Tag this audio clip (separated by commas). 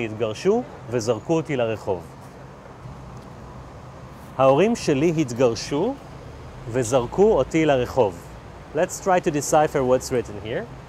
Speech